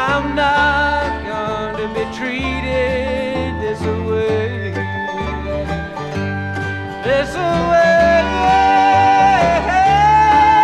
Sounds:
Music, Country

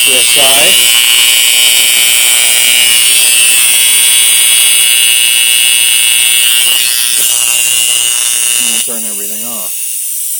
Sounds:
inside a small room, Speech, Engine

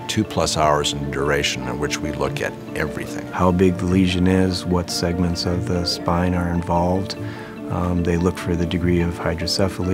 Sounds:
Speech, Music

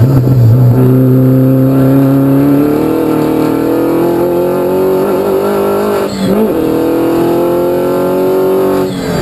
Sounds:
Motor vehicle (road), Car, Vehicle

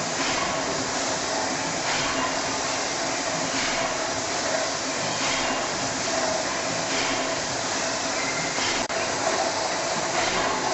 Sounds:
Heavy engine (low frequency)

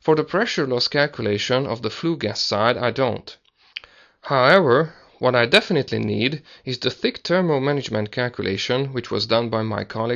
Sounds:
Speech

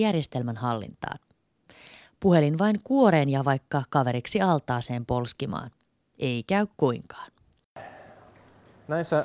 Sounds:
Speech

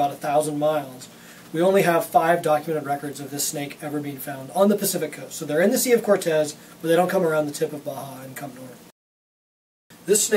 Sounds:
Speech

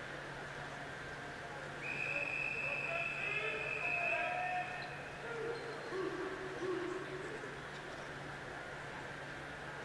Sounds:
swimming

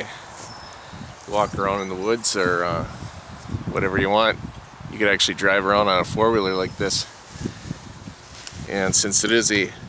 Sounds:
Speech

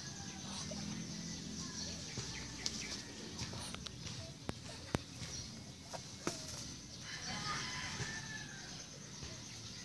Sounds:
Bird

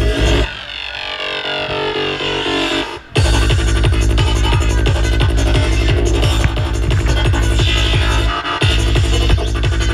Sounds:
Electronic music, Trance music, Music

